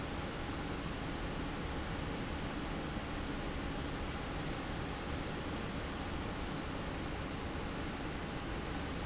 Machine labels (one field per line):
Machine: fan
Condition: abnormal